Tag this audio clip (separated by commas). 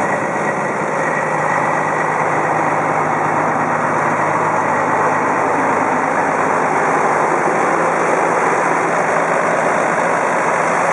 Truck, Vehicle